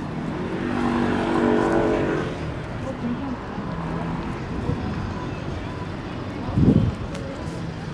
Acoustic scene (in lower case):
street